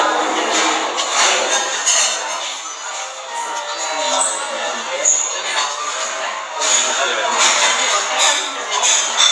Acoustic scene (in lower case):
restaurant